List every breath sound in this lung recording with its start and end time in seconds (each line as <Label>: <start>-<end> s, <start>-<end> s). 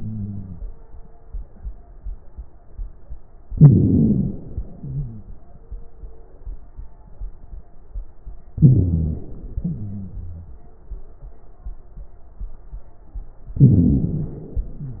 Inhalation: 3.50-4.77 s, 8.55-9.61 s, 13.59-14.65 s
Exhalation: 0.00-0.64 s, 4.77-5.55 s, 9.62-10.53 s, 14.67-15.00 s
Crackles: 0.00-0.64 s, 4.77-5.55 s, 9.62-10.53 s, 14.67-15.00 s